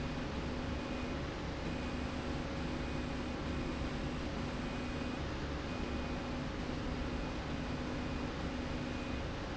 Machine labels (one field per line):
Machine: slide rail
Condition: normal